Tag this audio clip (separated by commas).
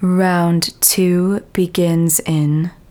Speech, Female speech, Human voice